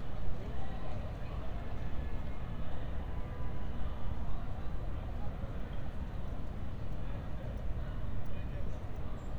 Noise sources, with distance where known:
car horn, far
person or small group talking, far

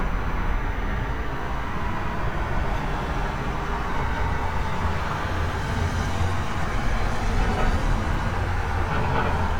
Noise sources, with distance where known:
engine of unclear size

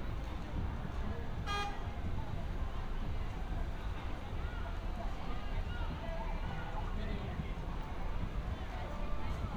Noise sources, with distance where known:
car horn, near
unidentified human voice, near

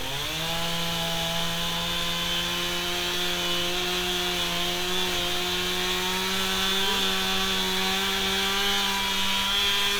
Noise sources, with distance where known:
chainsaw, near

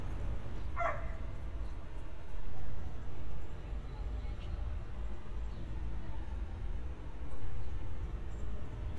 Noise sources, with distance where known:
person or small group talking, far
dog barking or whining, near

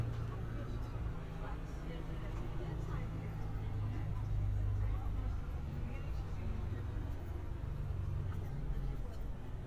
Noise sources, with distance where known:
person or small group talking, near

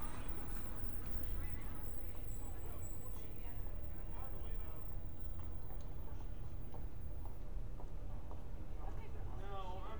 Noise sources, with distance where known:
person or small group talking, far

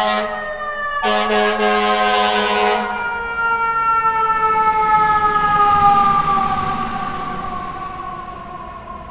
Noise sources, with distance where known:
siren, near

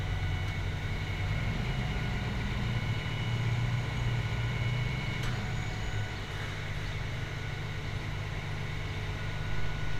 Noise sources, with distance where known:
large-sounding engine, far
unidentified impact machinery, far

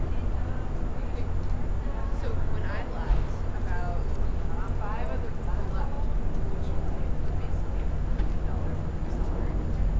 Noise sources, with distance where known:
person or small group talking, near

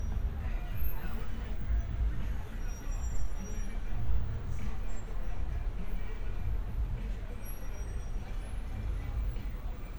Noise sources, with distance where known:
music from a moving source

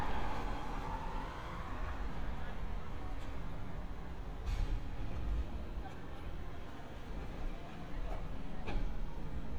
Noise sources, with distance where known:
background noise

